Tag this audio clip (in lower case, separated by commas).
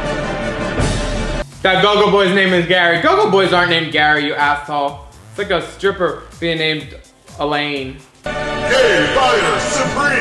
music, speech